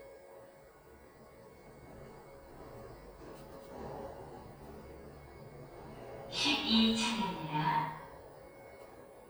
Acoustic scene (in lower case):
elevator